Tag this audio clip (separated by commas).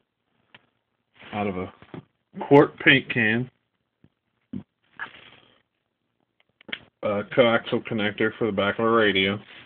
Speech